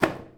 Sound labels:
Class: object falling; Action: being thrown; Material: cardboard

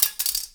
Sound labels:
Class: object falling; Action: being thrown; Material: plastic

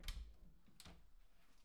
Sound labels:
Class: door; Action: opening; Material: wooden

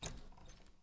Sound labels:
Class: door; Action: opening; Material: wooden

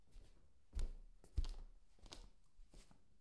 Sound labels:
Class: footsteps; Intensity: low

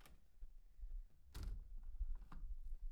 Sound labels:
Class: window; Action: closing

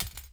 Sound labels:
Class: object falling; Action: being thrown; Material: synthetic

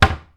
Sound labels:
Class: cupboard; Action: closing; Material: wooden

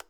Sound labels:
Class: switch; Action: being turned on; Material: plastic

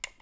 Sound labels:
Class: switch; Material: plastic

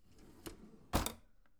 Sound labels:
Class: drawer; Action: opening; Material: wooden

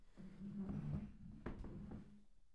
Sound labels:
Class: furniture moving; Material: wooden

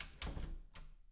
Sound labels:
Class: door; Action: closing; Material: wooden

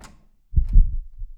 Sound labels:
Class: door; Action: opening; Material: wooden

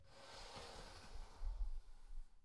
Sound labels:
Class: furniture moving; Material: wooden; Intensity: medium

